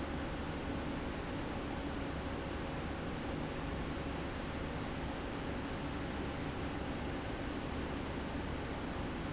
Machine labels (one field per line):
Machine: fan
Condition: abnormal